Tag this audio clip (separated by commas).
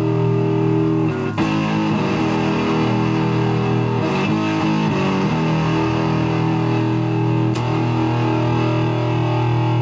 Music, Harmonic